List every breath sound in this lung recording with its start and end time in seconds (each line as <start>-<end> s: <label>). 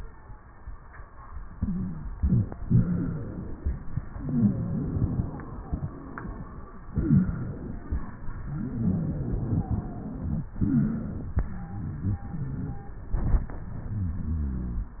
1.52-2.02 s: wheeze
1.52-2.14 s: inhalation
2.14-2.63 s: exhalation
2.14-2.63 s: wheeze
2.63-3.56 s: inhalation
2.67-3.27 s: wheeze
4.21-5.22 s: wheeze
4.21-6.44 s: exhalation
6.86-7.52 s: wheeze
6.88-8.08 s: inhalation
8.41-10.47 s: exhalation
8.41-10.47 s: wheeze
10.56-11.22 s: wheeze
10.56-11.49 s: inhalation
11.49-13.15 s: exhalation
11.49-13.15 s: wheeze
13.14-13.66 s: inhalation
13.69-14.90 s: exhalation